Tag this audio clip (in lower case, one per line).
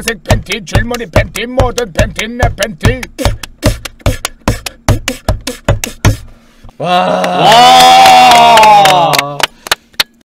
beat boxing